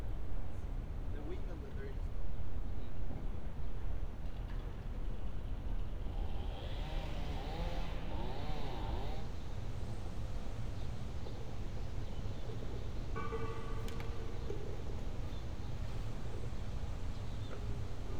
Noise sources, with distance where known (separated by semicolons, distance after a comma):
background noise